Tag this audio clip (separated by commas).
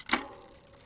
Bicycle, Vehicle